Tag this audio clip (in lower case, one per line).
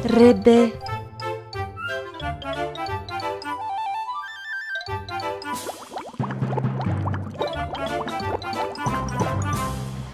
speech
music
music for children